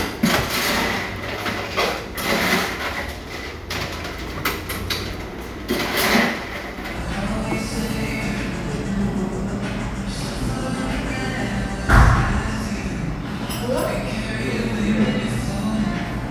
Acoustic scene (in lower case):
cafe